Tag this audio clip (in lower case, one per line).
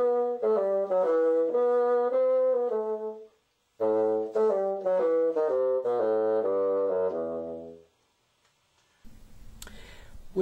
playing bassoon